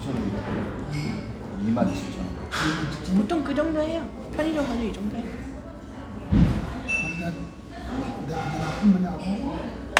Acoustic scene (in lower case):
restaurant